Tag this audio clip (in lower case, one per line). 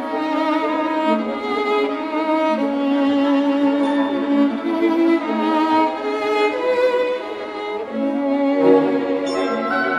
string section